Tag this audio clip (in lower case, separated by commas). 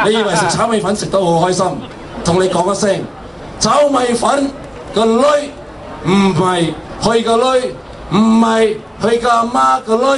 speech